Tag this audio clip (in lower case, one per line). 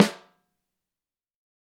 percussion
musical instrument
snare drum
music
drum